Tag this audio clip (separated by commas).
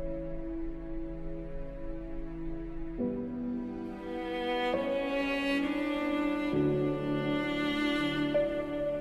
Cello